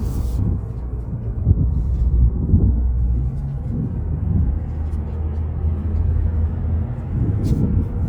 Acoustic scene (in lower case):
car